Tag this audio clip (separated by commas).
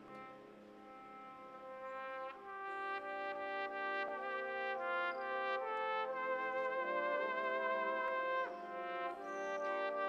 playing cornet